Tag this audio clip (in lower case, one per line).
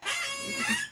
squeak